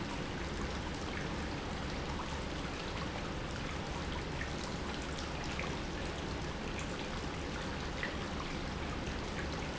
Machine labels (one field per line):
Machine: pump